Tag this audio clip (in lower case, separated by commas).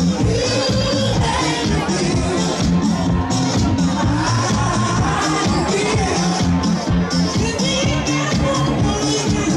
disco, music